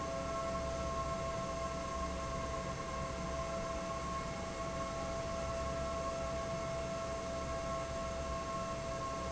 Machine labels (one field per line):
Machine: fan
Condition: normal